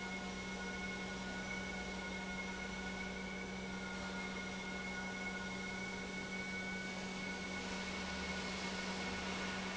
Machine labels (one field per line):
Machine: pump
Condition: normal